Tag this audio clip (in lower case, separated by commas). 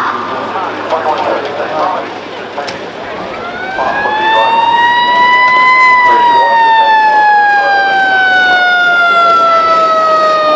police car (siren), emergency vehicle, siren